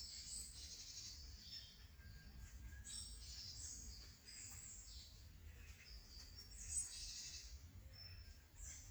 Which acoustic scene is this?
park